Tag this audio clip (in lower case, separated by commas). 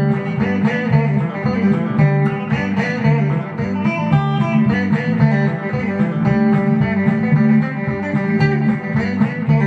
plucked string instrument, musical instrument, strum, guitar, music